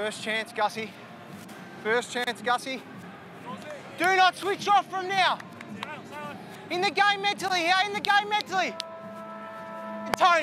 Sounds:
Speech, Music

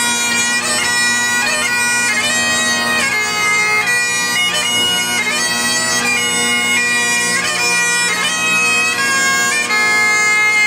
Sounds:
playing bagpipes

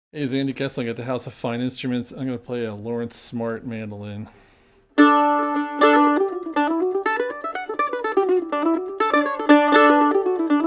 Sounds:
playing mandolin

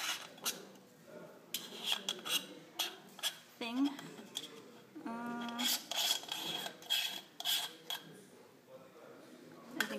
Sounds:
Speech

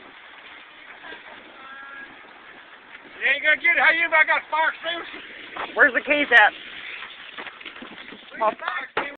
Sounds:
Speech

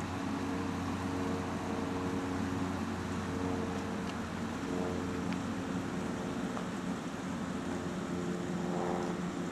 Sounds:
Rustling leaves

